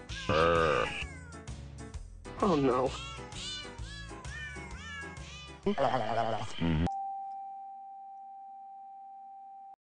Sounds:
Music, Domestic animals, Speech, Cat, Meow, Animal

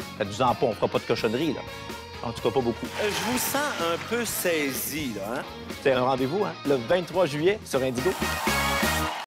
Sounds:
Speech, Music

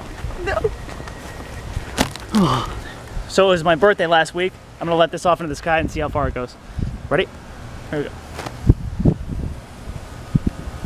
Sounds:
Speech

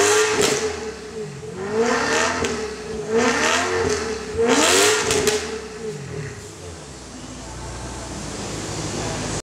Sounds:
Speech

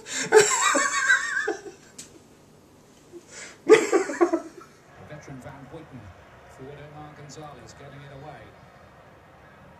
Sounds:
Speech

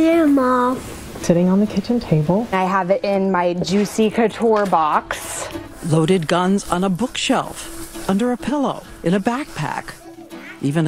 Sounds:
Speech, Music

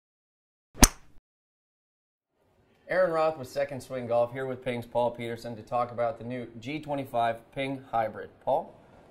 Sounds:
Speech

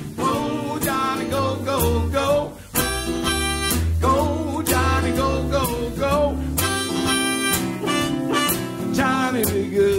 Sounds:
Bowed string instrument, Singing, Music, Musical instrument

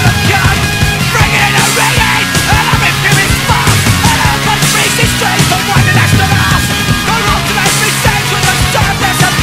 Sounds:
Music

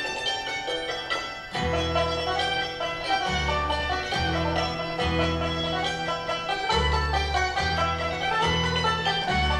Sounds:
Traditional music, Plucked string instrument, Guitar, Banjo, Music, Musical instrument, Violin

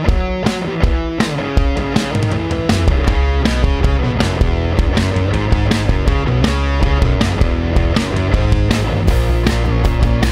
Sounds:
Music

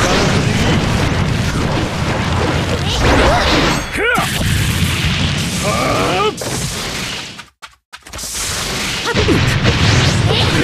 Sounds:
Burst

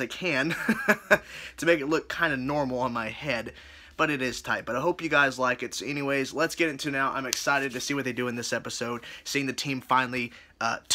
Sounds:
Speech

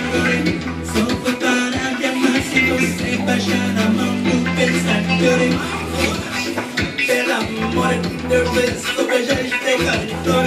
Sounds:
Music, Soundtrack music

